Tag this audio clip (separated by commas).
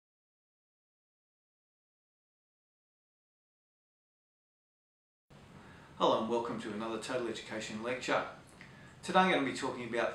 inside a small room, Silence, Speech